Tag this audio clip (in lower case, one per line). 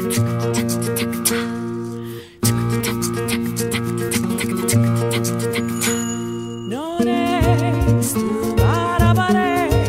music